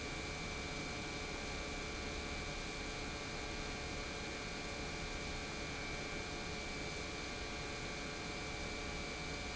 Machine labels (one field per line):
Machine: pump